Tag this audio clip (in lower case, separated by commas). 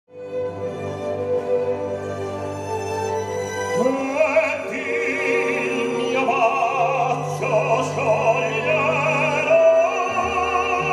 orchestra, music, opera